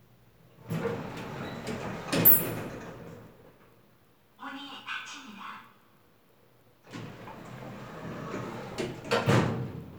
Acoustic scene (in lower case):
elevator